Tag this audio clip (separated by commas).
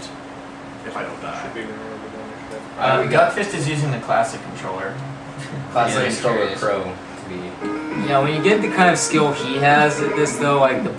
Speech, Music